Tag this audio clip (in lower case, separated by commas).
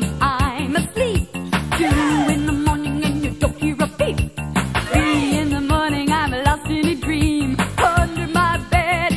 music